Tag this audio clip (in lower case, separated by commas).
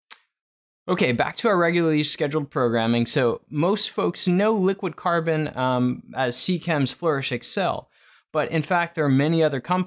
speech